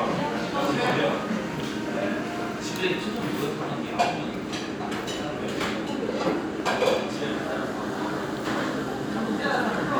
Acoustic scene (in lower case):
restaurant